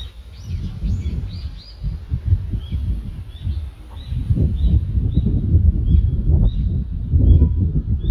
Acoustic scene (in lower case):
residential area